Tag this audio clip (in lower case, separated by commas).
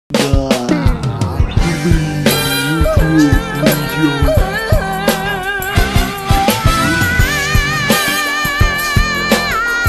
music